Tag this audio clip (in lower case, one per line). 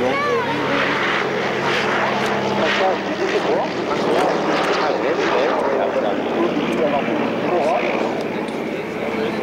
jet engine
aircraft
speech